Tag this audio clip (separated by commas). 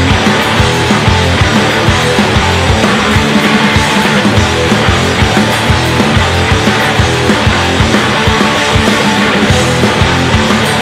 Music